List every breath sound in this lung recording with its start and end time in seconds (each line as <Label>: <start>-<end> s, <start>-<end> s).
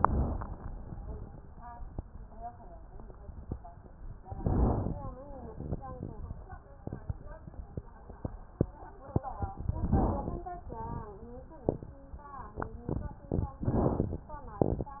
Inhalation: 4.33-5.14 s, 9.66-10.47 s, 13.59-14.40 s